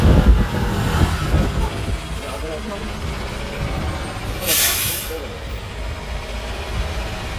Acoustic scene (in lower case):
street